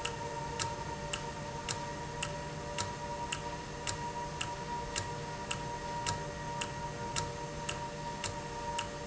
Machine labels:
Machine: valve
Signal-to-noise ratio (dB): -6 dB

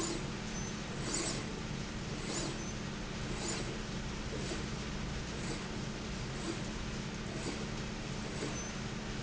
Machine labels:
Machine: slide rail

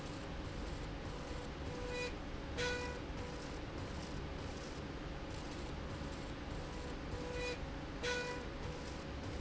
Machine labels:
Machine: slide rail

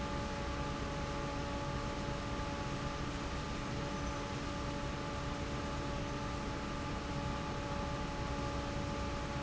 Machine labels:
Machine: fan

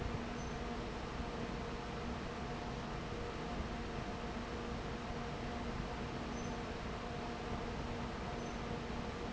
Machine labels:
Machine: fan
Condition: abnormal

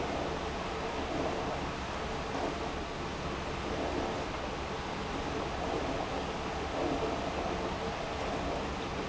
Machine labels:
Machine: pump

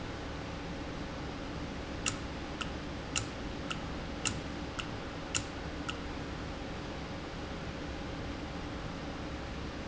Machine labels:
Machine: valve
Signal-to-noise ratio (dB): -6 dB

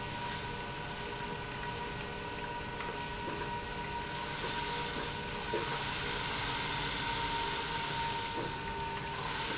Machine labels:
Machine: pump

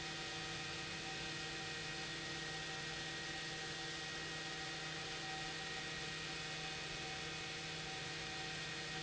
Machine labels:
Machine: pump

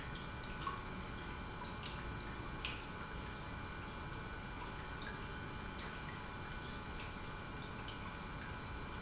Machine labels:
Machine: pump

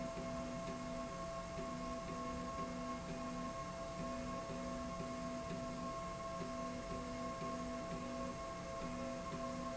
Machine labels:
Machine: slide rail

